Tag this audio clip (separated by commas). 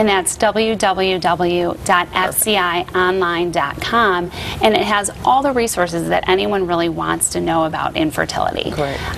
Female speech, Speech